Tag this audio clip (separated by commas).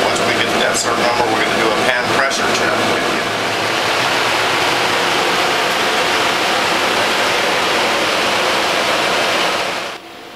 Mechanical fan